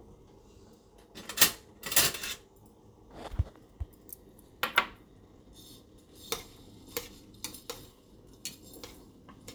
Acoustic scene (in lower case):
kitchen